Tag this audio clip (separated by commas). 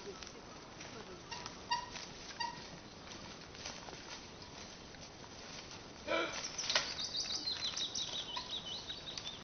Bird, Speech